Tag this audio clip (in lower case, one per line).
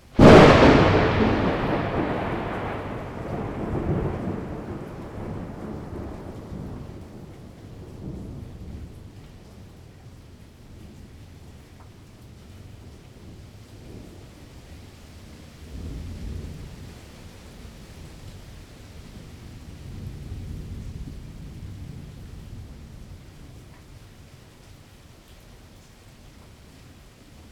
thunderstorm
thunder